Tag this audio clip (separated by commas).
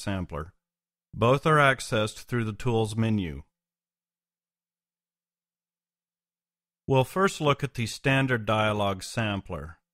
Speech